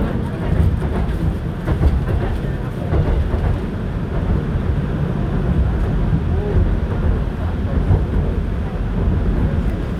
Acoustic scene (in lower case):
subway train